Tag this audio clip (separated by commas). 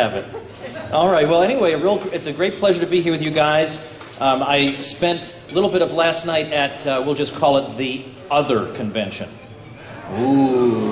Music, Speech, Male speech